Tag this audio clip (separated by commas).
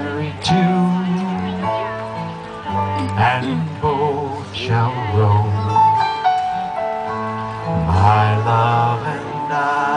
Music, Speech